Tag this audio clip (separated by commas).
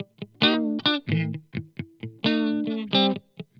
Plucked string instrument, Guitar, Electric guitar, Musical instrument, Music